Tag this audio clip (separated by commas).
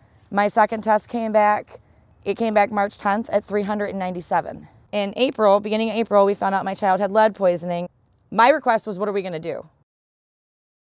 Speech